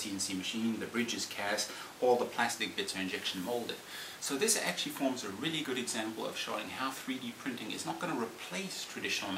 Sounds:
speech

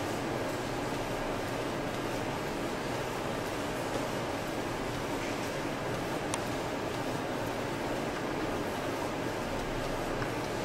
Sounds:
printer

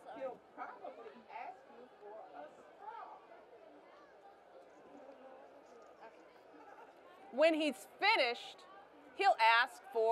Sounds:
speech

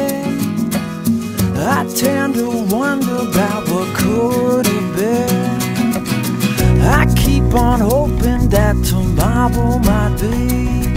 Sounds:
music

